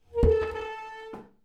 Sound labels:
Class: furniture moving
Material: wooden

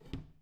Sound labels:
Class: cupboard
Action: closing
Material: wooden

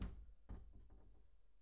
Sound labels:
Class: cupboard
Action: closing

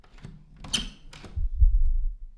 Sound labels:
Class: door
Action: opening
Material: wooden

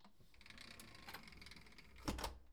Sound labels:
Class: window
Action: closing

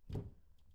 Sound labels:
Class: cupboard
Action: closing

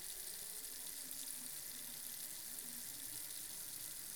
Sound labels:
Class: water tap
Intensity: high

